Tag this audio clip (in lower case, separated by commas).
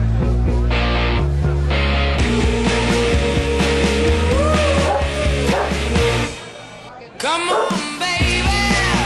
animal, music, pets, dog, bow-wow